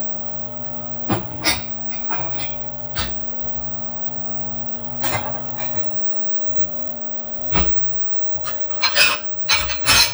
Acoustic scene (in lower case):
kitchen